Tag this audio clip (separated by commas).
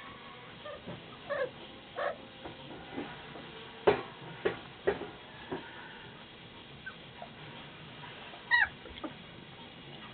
Animal